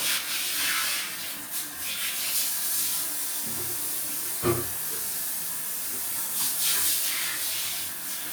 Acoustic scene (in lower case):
restroom